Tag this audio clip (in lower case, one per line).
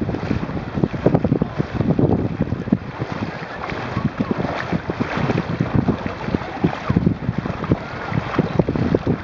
speech